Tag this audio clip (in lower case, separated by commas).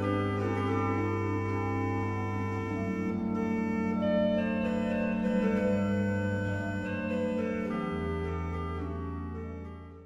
hammond organ, organ